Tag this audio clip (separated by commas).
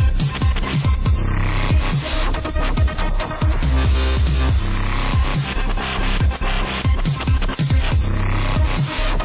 Electronic music, Dubstep, Music